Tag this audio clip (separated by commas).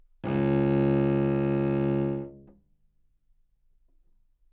Musical instrument, Bowed string instrument, Music